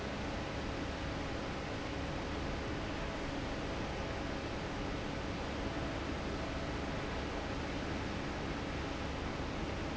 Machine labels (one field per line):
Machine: fan